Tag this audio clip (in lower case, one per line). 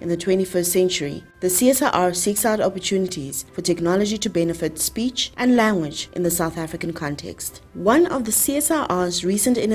music
speech